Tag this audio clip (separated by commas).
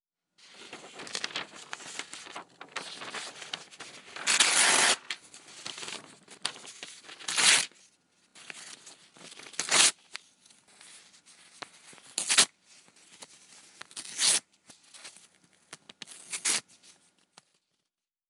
Tearing